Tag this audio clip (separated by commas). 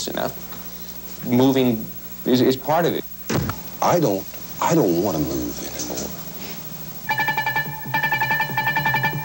Speech